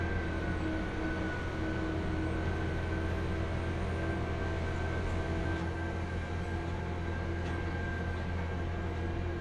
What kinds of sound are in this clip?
large-sounding engine